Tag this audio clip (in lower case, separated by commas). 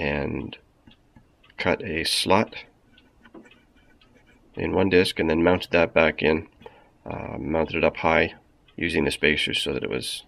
speech, tick